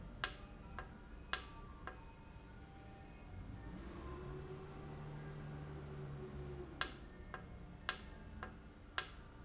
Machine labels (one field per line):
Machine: valve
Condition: normal